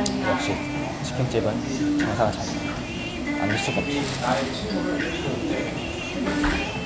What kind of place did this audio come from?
restaurant